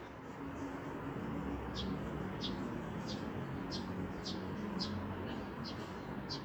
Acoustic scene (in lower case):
residential area